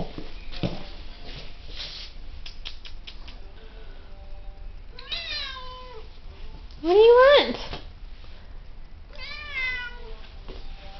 Walking followed by cat meowing and women speaking